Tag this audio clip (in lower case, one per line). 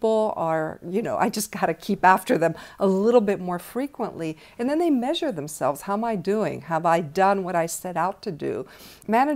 speech